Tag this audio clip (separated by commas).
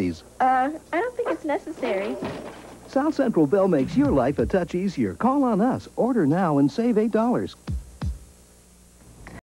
Speech